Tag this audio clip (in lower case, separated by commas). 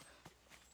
run